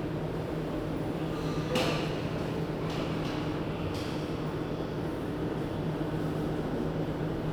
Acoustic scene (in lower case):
subway station